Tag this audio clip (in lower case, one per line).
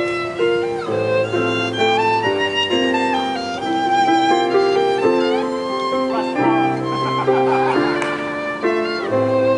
fiddle
speech
musical instrument
music